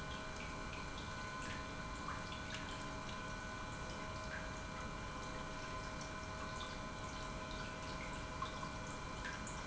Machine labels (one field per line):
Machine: pump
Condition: normal